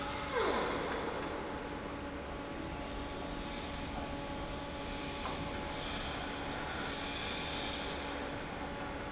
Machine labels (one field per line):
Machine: fan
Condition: normal